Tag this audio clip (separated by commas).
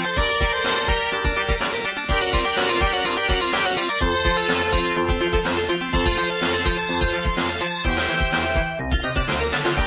Music, Soundtrack music